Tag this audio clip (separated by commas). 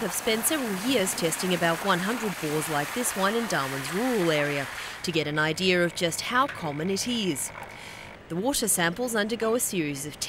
Speech